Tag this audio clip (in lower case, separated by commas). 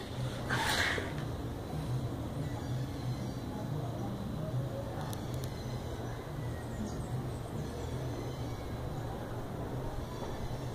bird